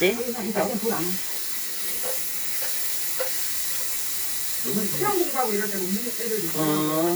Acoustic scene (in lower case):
restaurant